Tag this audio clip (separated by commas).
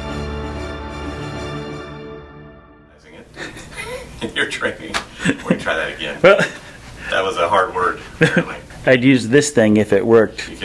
Music, Speech